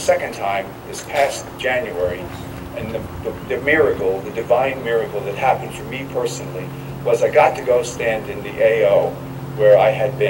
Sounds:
monologue, Male speech, Speech

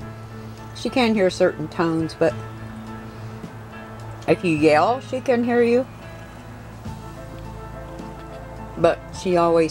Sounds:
Music, Speech

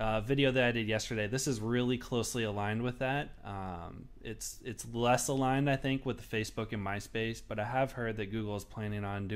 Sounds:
Speech

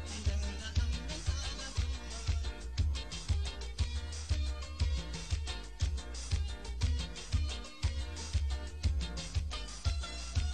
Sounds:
Music

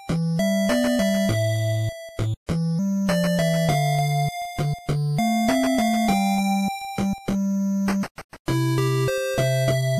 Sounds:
Music

